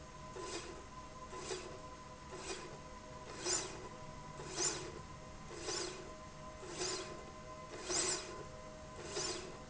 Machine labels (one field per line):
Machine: slide rail